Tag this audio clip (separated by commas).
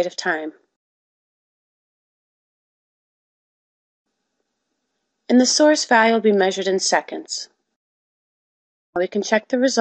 Speech